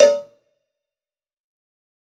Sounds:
cowbell, bell

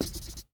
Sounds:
writing, home sounds

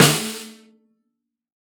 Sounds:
snare drum, drum, music, percussion, musical instrument

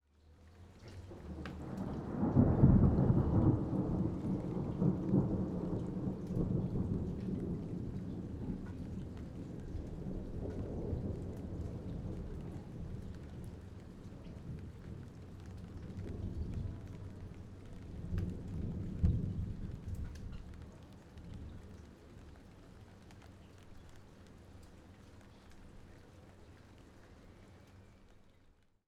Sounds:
thunder, thunderstorm

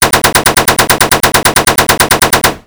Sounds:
explosion, gunfire

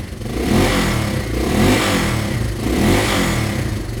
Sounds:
engine, vroom

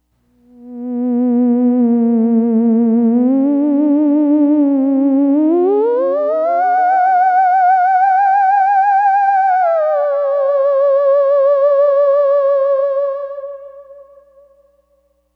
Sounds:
music, musical instrument

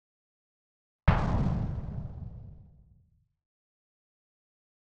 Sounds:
explosion

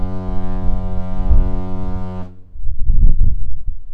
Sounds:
vehicle, boat

